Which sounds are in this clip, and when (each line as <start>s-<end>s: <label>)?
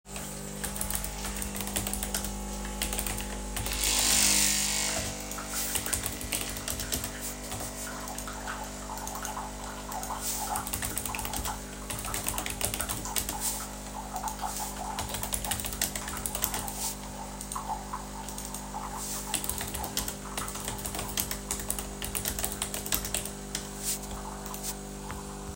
0.0s-25.6s: coffee machine
0.3s-25.6s: keyboard typing